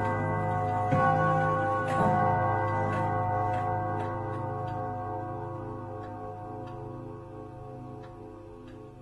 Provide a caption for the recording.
Clock bell ringing followed by ticking